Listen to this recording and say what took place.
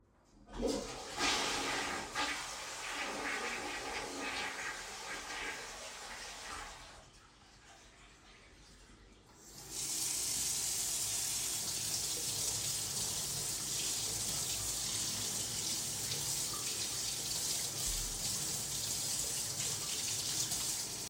I pressed the flush button on the toilet. Then I took a step towards the sink and turned on the tap water.